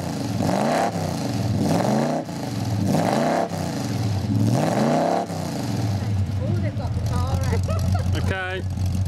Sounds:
speech, car, vehicle

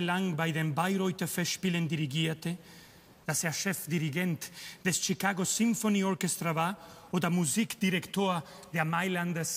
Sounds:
speech

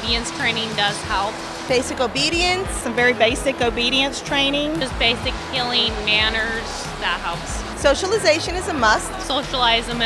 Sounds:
music, speech

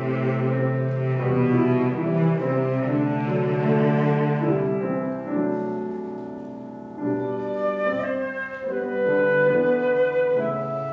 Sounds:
playing cello, cello, piano, music, double bass, classical music, violin

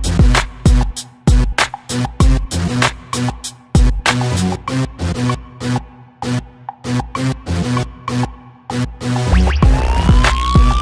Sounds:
electronic dance music, music

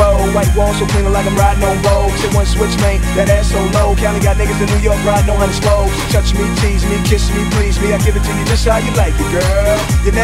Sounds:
music, rapping

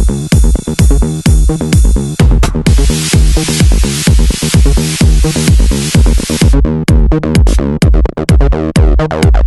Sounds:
techno, music

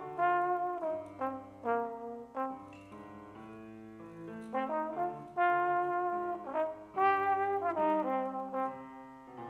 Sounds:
playing trombone

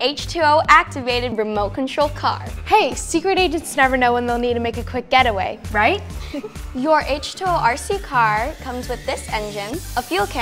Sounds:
speech, music

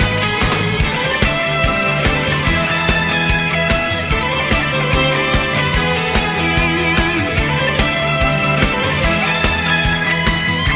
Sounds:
pop music, music, theme music

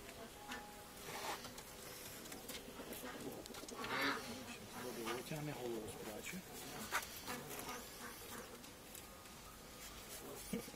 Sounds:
bird, speech

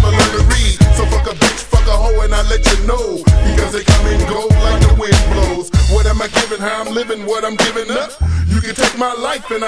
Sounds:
music

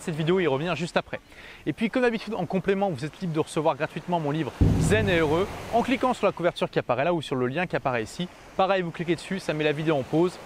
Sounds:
speech

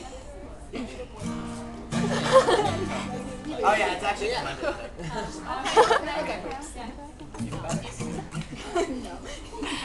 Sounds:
music, speech

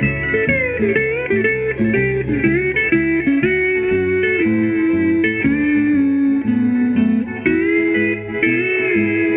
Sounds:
steel guitar, musical instrument, guitar, music

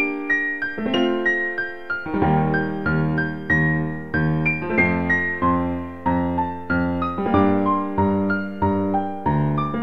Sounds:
electronic music, music, electric piano

